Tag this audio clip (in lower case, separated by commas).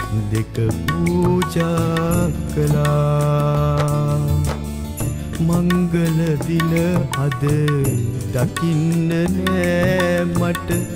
music, wedding music